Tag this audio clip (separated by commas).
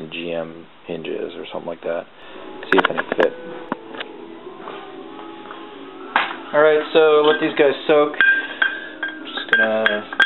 Speech, Music